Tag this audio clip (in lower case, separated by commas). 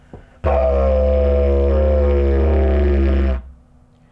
music, musical instrument